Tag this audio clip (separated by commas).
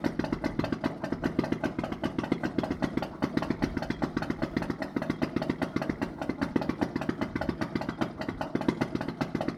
Idling, Engine